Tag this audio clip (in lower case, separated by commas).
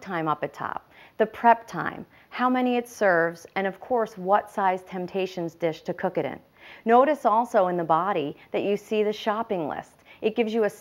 speech